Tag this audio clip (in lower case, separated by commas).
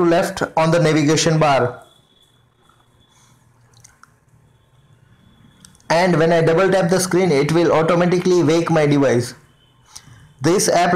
speech